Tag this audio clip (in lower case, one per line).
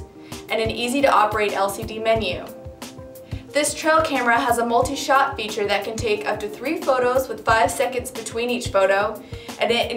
music
speech